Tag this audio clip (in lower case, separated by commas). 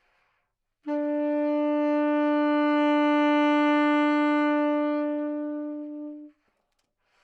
wind instrument, music, musical instrument